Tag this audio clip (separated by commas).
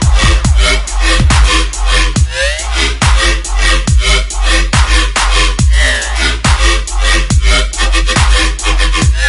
Dubstep, Music